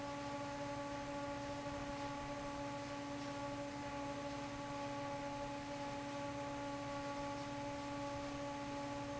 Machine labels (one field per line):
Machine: fan